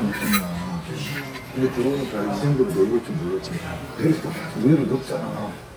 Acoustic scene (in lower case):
crowded indoor space